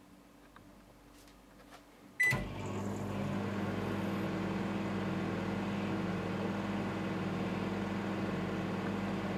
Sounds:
Microwave oven

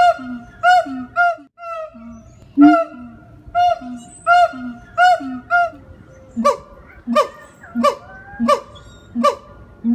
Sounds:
gibbon howling

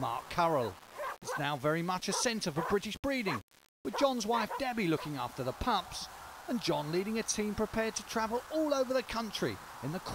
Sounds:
Animal, Dog, Speech, Domestic animals

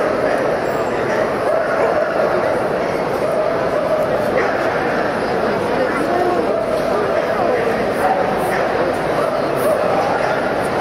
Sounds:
Speech, Bow-wow

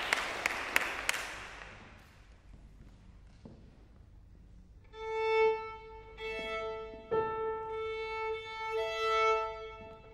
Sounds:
fiddle, Musical instrument, Music

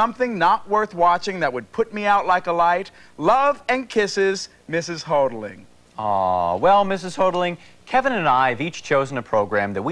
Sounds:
Speech

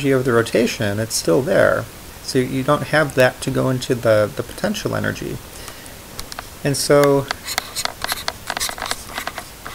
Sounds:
inside a small room, Speech

